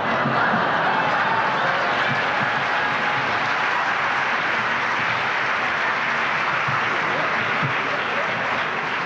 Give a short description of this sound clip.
A crowd applauds and cheers